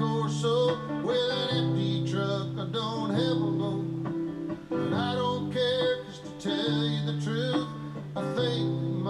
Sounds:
music

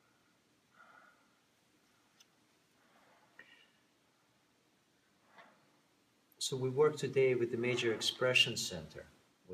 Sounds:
speech
breathing
man speaking

